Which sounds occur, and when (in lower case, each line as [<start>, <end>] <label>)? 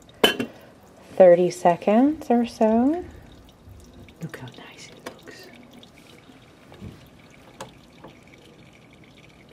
[0.00, 9.52] liquid
[0.00, 9.52] mechanisms
[0.18, 0.51] dishes, pots and pans
[0.44, 0.70] breathing
[0.94, 2.05] surface contact
[1.14, 3.05] female speech
[4.14, 5.47] female speech
[4.98, 5.47] whispering
[5.03, 5.18] dishes, pots and pans
[5.87, 6.20] surface contact
[6.67, 7.11] surface contact
[6.78, 6.90] wind noise (microphone)
[7.55, 7.67] tap
[7.97, 8.10] tap